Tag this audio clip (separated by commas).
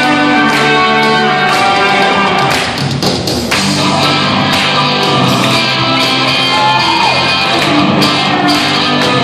Music